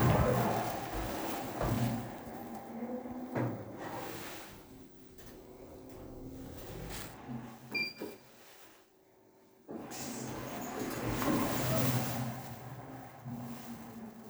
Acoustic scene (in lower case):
elevator